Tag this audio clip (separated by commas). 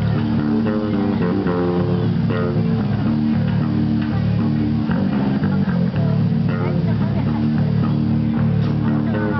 Music